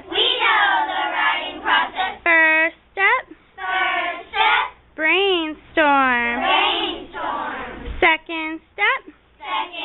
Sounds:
Child speech, Speech

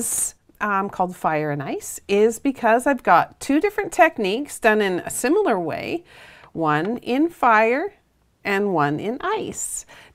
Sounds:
Speech

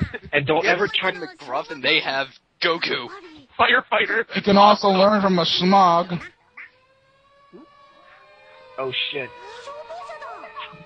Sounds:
Speech

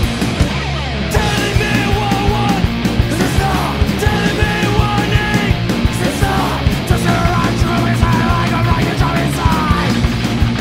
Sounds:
Punk rock, Progressive rock, Music, Heavy metal

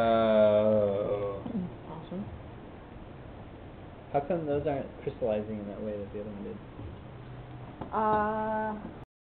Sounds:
Speech

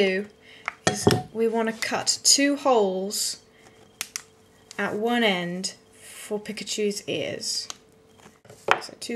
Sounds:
Speech

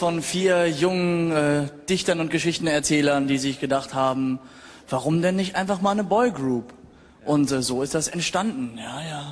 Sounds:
Speech

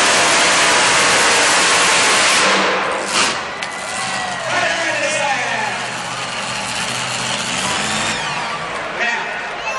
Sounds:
Truck, Speech, Vehicle

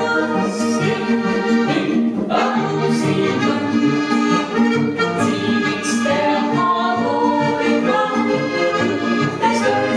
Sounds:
Zither, Music

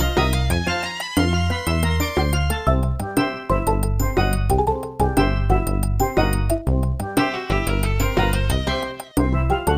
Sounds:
Music, Video game music

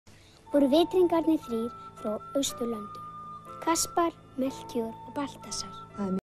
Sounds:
Female speech, Speech, kid speaking, Music, monologue

